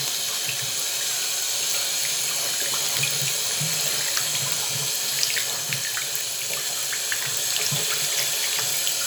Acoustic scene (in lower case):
restroom